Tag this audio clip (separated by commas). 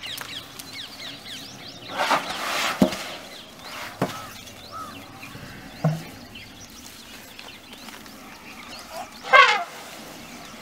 elephant trumpeting